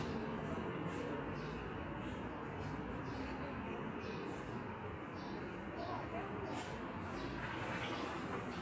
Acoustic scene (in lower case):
residential area